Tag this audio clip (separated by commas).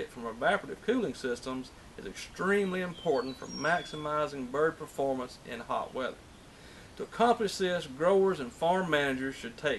Speech